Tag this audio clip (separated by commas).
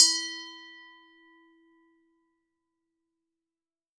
Glass